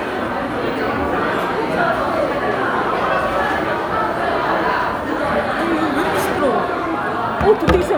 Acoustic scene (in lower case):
crowded indoor space